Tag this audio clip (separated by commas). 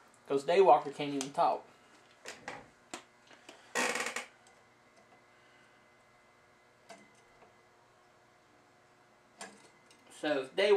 Speech, inside a small room